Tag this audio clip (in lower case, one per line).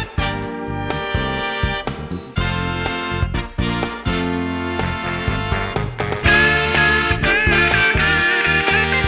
music